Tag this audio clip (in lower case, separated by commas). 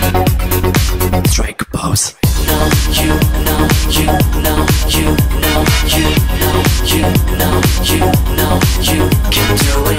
music